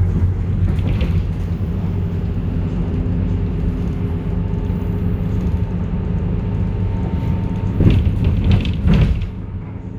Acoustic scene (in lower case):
bus